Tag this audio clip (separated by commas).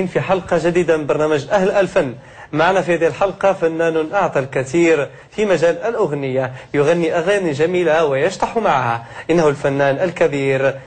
Speech